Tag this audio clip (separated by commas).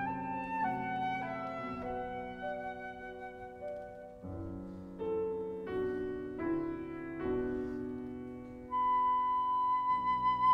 Music, Piano, Flute, Musical instrument